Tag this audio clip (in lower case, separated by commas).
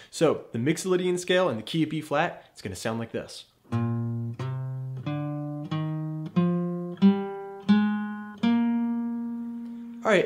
speech, guitar, musical instrument, electric guitar, music, strum, plucked string instrument